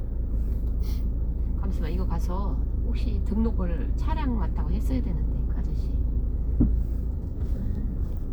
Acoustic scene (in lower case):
car